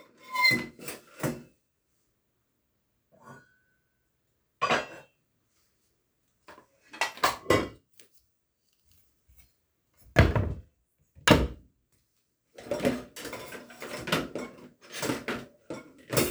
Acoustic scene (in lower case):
kitchen